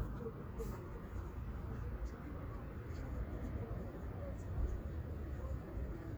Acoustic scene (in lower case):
residential area